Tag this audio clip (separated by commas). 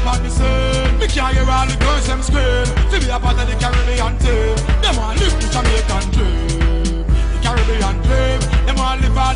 Reggae, Music